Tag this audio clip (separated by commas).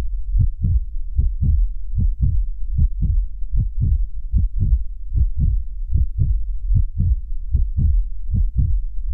Heart murmur, Heart sounds